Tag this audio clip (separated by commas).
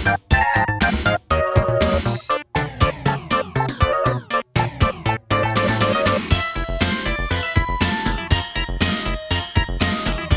Music